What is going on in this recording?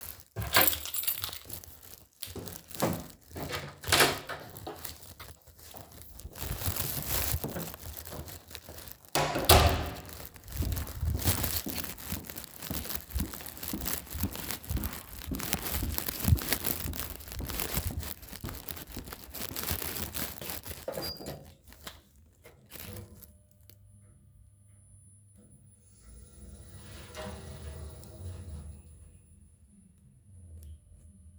I picked up my keys and left the room to go take the trash out, I pressed the elevator and waited for it to come up